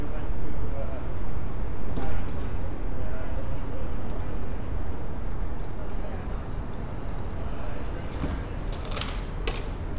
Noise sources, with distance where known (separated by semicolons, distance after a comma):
person or small group talking, far